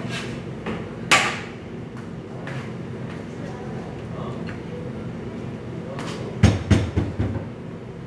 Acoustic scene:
cafe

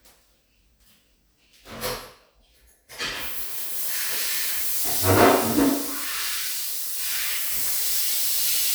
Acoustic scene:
restroom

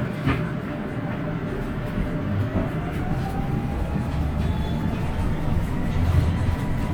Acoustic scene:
bus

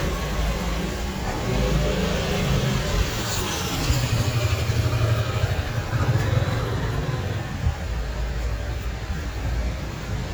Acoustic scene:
street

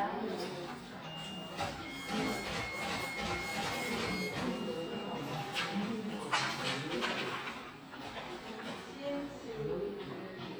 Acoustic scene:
crowded indoor space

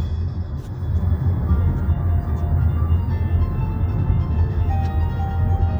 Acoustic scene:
car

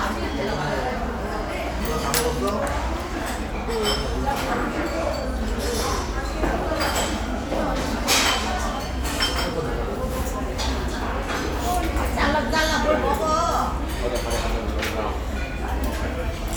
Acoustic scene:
restaurant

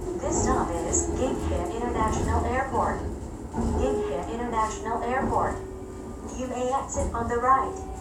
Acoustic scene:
subway train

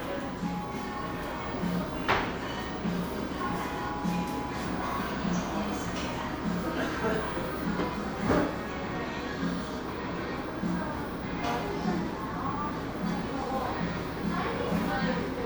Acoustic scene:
cafe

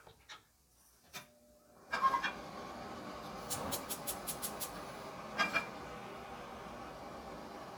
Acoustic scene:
kitchen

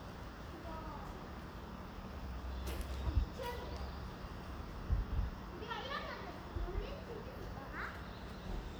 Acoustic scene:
residential area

